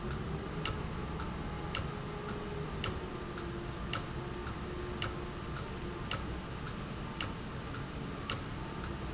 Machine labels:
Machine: valve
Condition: abnormal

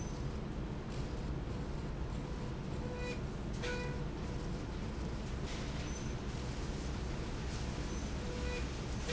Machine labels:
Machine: slide rail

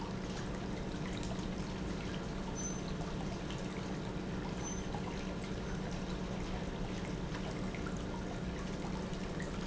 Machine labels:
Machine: pump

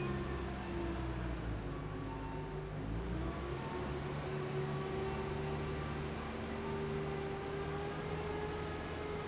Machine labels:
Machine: fan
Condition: abnormal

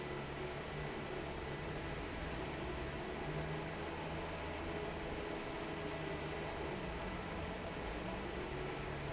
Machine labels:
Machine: fan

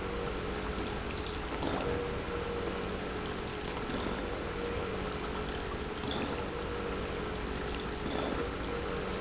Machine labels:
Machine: pump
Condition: abnormal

